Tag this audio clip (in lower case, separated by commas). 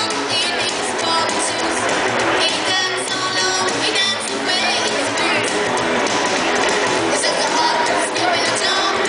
inside a public space, ukulele, music, country, speech